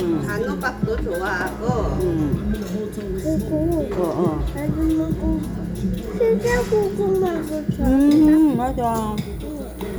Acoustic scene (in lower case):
restaurant